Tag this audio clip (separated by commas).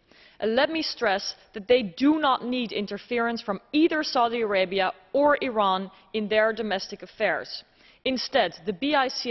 Speech, woman speaking